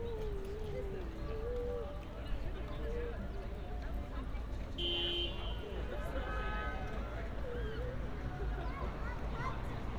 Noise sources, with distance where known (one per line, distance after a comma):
car horn, near
unidentified human voice, near